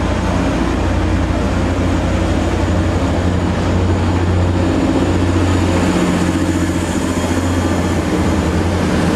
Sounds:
Rail transport, train wagon, Train, metro

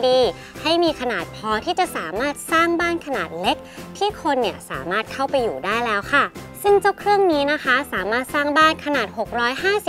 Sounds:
Speech, Music

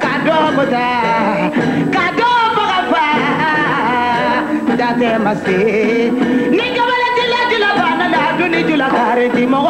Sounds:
Music, inside a large room or hall

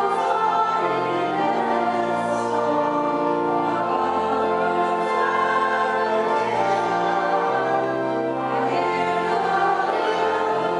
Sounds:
Choir, Music

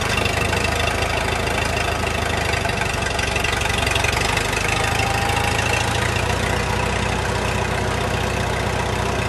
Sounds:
Vehicle, Idling

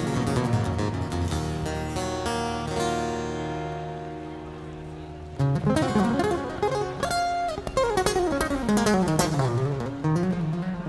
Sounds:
Music

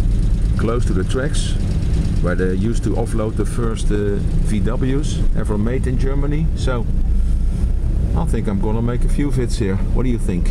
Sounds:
Speech, Vehicle

